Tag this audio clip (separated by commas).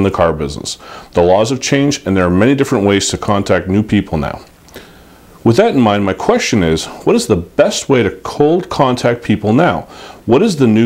Speech